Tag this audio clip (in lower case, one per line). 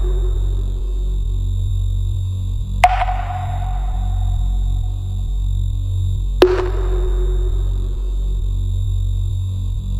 sonar
music